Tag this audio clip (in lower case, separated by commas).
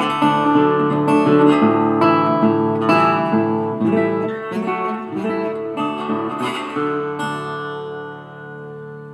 guitar, plucked string instrument, musical instrument, music, acoustic guitar, electric guitar